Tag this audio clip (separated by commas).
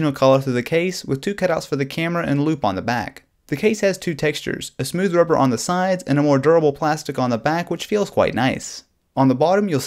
Speech